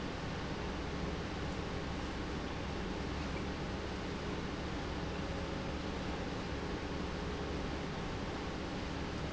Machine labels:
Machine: pump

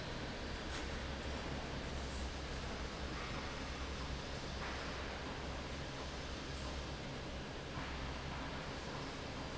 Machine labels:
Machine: fan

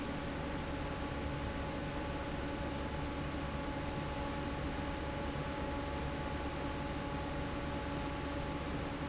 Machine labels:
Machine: fan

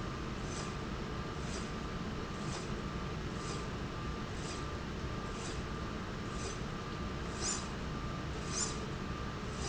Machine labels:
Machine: slide rail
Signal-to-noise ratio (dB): -6 dB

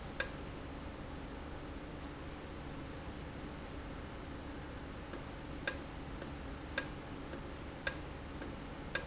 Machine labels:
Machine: valve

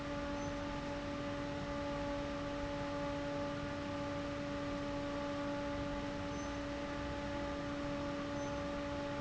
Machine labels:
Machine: fan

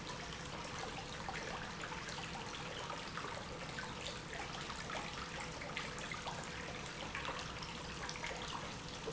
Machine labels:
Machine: pump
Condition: normal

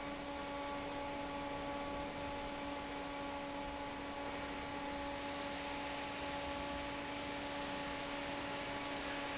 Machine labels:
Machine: fan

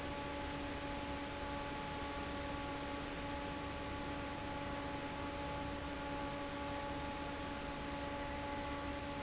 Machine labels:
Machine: fan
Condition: normal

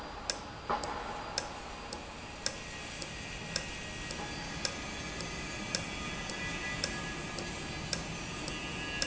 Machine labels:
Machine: valve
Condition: normal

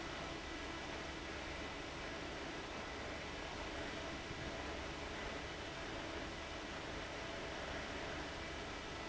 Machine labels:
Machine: fan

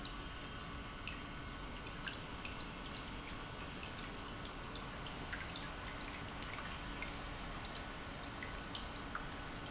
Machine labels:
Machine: pump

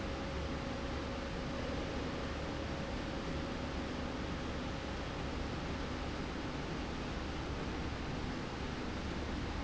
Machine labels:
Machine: slide rail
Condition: normal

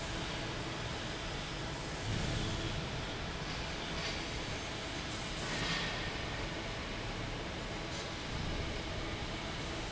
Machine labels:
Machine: fan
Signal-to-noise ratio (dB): -6 dB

